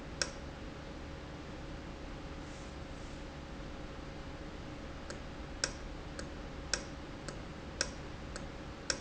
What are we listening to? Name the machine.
valve